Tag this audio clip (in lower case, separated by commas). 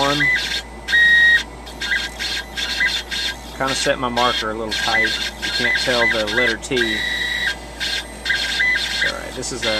speech